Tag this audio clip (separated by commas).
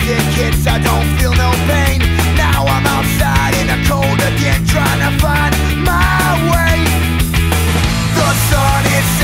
Music